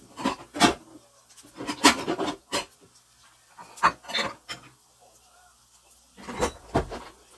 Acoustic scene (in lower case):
kitchen